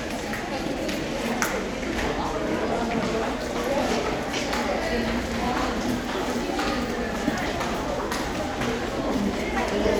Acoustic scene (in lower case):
crowded indoor space